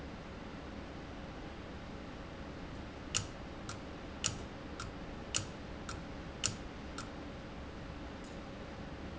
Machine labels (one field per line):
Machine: valve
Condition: abnormal